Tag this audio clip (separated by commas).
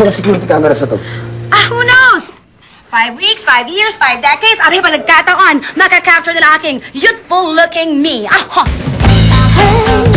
Music, Speech